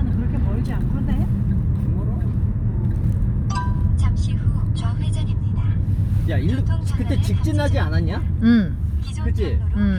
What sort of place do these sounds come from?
car